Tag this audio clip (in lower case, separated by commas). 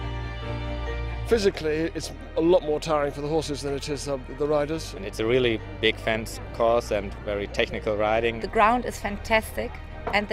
speech, music